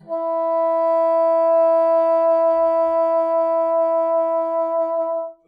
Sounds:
music
wind instrument
musical instrument

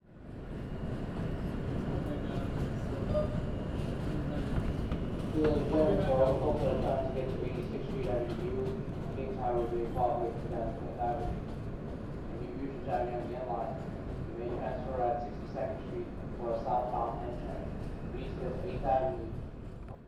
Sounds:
metro
rail transport
vehicle

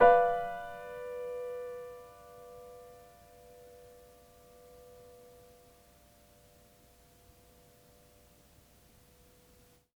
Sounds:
piano
music
keyboard (musical)
musical instrument

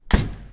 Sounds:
domestic sounds
slam
door

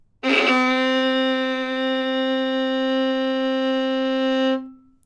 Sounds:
bowed string instrument
music
musical instrument

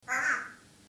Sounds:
wild animals
bird
animal

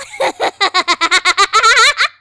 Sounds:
human voice
laughter

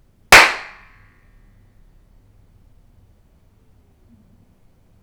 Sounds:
clapping
hands

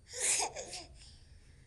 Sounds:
laughter
human voice

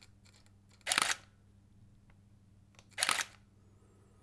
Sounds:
camera
mechanisms

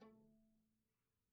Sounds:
musical instrument
bowed string instrument
music

